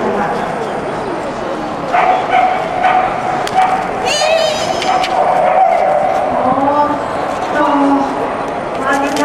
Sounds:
Animal, Bow-wow, dog bow-wow, Dog, Speech, pets

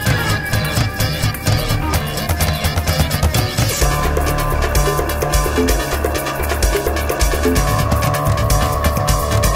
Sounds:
Music, Rhythm and blues

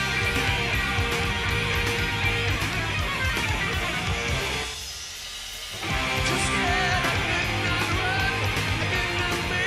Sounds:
Music

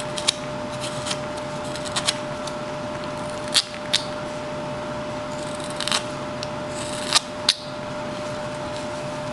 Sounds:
Rub, Wood

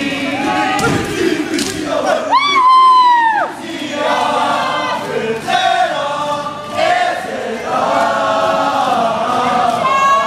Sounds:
inside a large room or hall

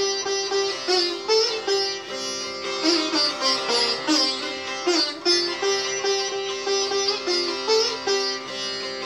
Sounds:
playing sitar

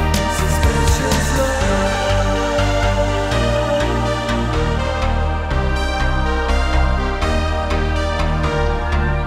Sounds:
Background music

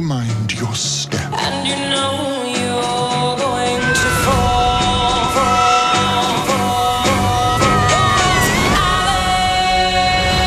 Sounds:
Music, Speech

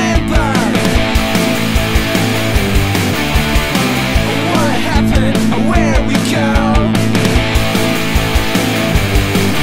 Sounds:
Music, Singing, Grunge

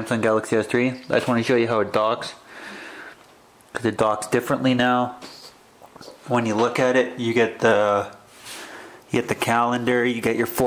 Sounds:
Speech

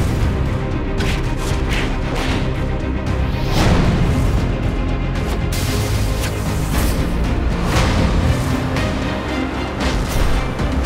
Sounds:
Whoosh, Music

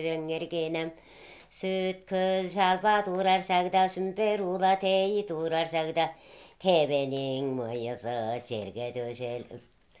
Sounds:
inside a small room

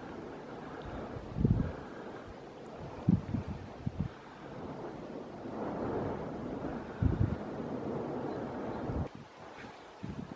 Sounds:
Eruption

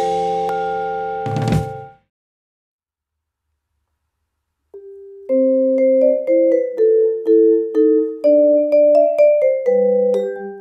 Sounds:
playing vibraphone

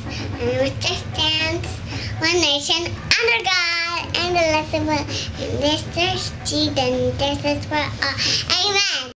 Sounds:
Female speech, Speech, Narration

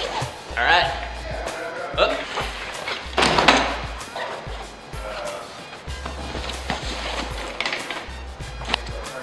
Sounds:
Music, Speech

